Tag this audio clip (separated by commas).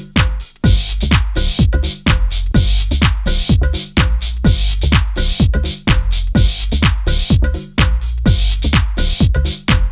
Music